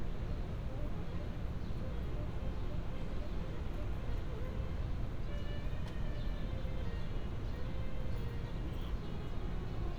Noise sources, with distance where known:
music from a fixed source, far

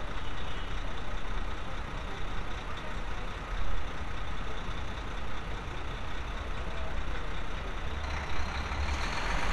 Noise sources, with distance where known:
large-sounding engine, near

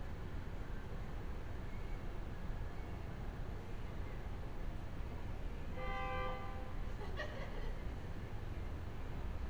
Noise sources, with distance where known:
car horn, near
person or small group talking

